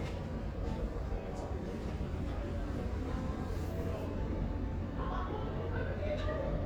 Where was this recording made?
in a crowded indoor space